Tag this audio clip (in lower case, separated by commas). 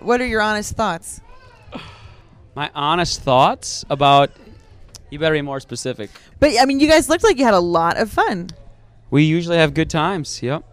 speech